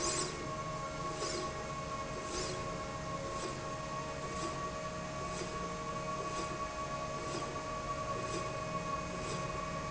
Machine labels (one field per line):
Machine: slide rail